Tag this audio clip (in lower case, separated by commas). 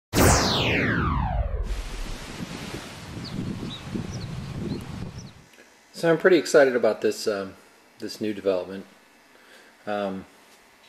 outside, rural or natural, music, rustling leaves, speech